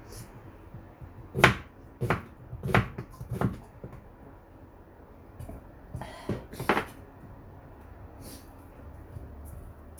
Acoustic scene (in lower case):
kitchen